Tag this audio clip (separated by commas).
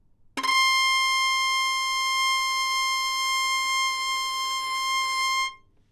Music, Musical instrument, Bowed string instrument